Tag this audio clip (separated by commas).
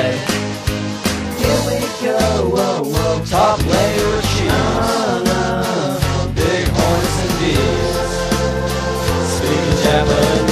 Music